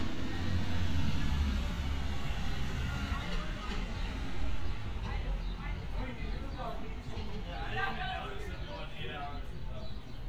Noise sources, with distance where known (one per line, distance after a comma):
person or small group talking, near